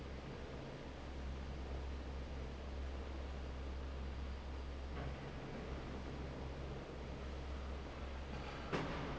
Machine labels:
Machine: fan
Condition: normal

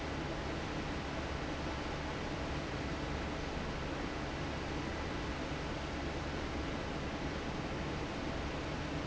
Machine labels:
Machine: fan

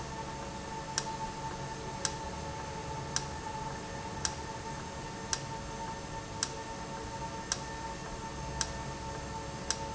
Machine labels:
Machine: valve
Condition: normal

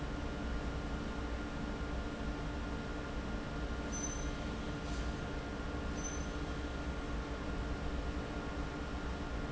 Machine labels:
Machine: fan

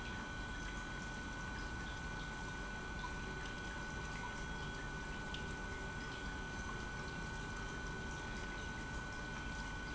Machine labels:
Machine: pump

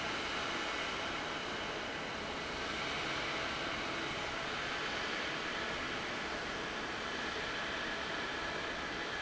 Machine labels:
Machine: fan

